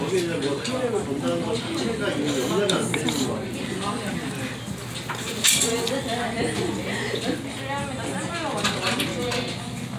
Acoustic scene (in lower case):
crowded indoor space